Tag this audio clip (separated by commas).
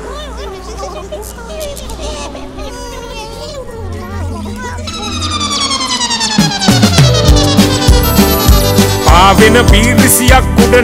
Music